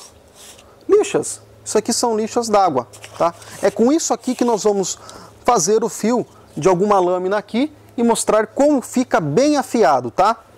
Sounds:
sharpen knife

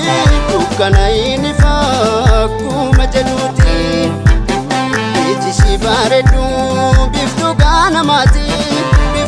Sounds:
blues, music

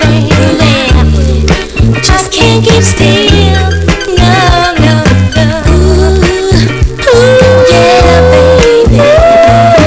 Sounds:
electronic music, music, reggae

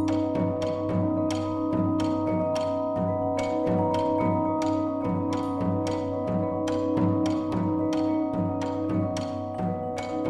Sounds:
music

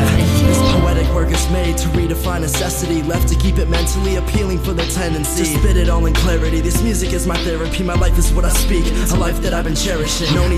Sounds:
music, funk

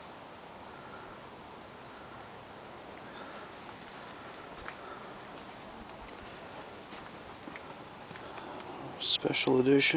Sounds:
speech

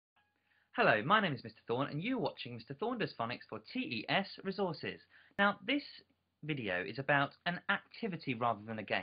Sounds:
speech, inside a small room

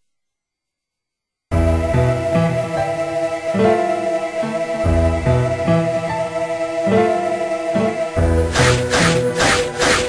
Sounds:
silence, music

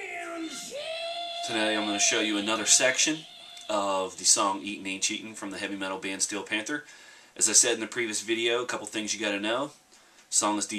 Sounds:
speech

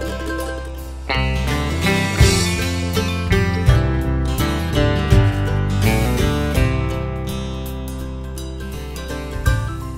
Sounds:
music

